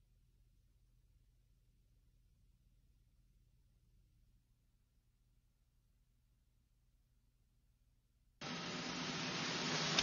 Vehicle driving on the road